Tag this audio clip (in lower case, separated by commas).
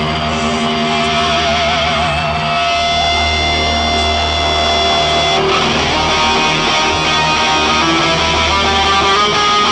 music, musical instrument, plucked string instrument, electric guitar, guitar